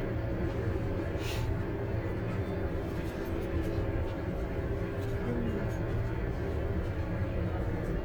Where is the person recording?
on a bus